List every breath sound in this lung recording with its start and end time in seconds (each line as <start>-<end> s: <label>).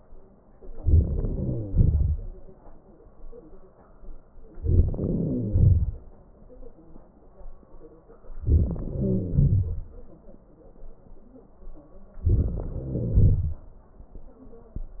0.59-1.39 s: inhalation
0.59-1.39 s: crackles
1.40-2.14 s: crackles
1.40-2.54 s: exhalation
4.54-4.98 s: inhalation
4.97-5.89 s: crackles
4.98-6.22 s: exhalation
8.26-8.85 s: inhalation
8.26-8.85 s: crackles
8.87-9.77 s: crackles
8.87-10.19 s: exhalation
12.17-12.66 s: inhalation
12.17-12.66 s: crackles
12.68-13.67 s: exhalation
12.68-13.67 s: crackles